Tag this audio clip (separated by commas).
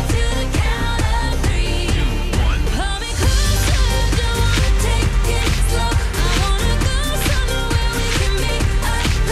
Music of Asia